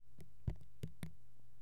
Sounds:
Drip, Liquid, Raindrop, Water, Rain

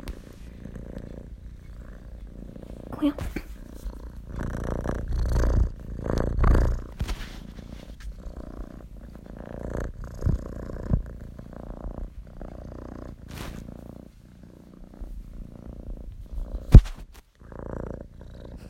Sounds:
Animal, Domestic animals, Purr, Cat

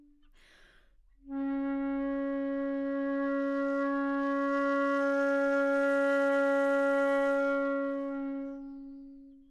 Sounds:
Music, Wind instrument, Musical instrument

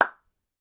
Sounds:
Hands, Clapping

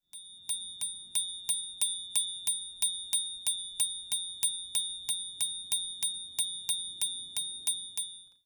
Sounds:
Bicycle bell, Bicycle, Alarm, Bell, Vehicle

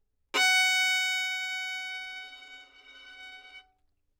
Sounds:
Musical instrument, Bowed string instrument, Music

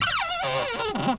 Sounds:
home sounds, Cupboard open or close

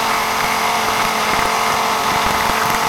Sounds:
Tools

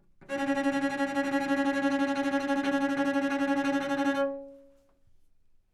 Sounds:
Music, Musical instrument, Bowed string instrument

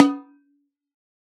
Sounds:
Drum, Music, Snare drum, Musical instrument, Percussion

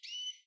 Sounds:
Chirp, bird call, Bird, Wild animals, Animal

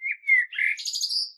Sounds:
Animal, Wild animals, Bird

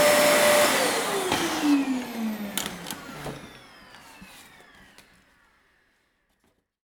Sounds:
Engine

